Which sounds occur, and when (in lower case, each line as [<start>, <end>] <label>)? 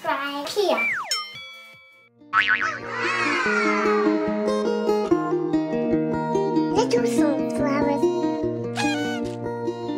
[0.00, 9.95] music
[0.01, 0.90] child speech
[0.92, 2.00] sound effect
[2.22, 2.89] sound effect
[2.81, 3.81] children shouting
[6.66, 7.32] child speech
[7.50, 8.08] child speech
[8.63, 9.22] foghorn